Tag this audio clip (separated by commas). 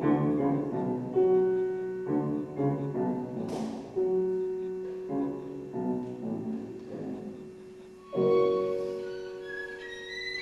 Music, fiddle, inside a small room, inside a large room or hall